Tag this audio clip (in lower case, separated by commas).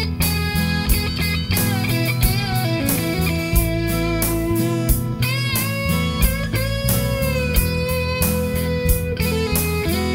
music, rock music